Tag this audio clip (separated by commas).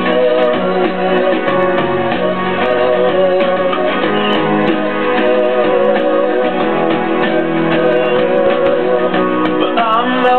Music